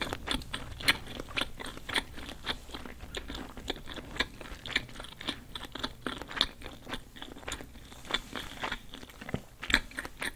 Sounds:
people slurping

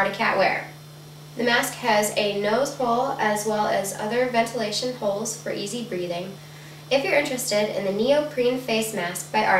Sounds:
speech

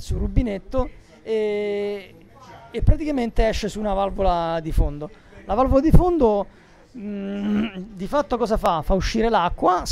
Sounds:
speech

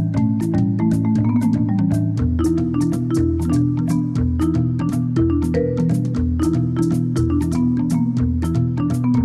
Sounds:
music, video game music

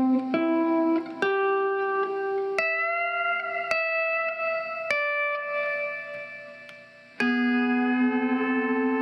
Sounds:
strum, plucked string instrument, guitar, musical instrument, music

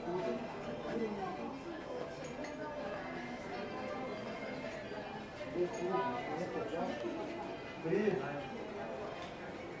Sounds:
speech, music

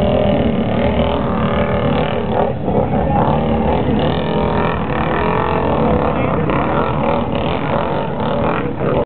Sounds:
speech

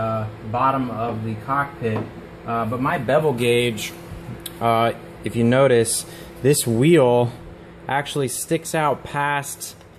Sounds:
speech

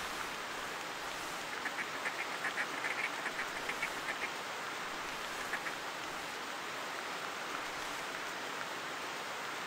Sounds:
quack, duck, animal

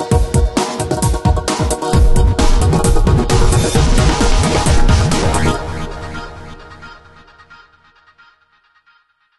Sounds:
trance music

